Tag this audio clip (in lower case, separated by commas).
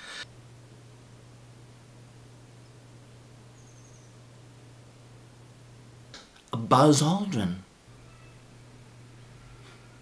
speech